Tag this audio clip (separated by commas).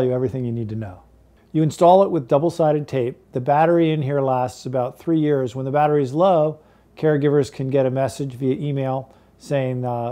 Speech